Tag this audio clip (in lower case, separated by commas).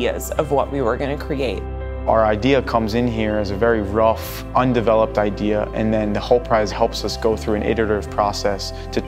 speech, music